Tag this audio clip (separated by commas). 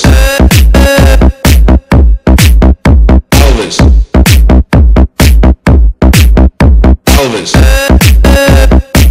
Music